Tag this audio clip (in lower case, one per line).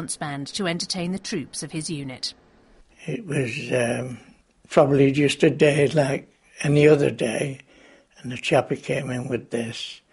speech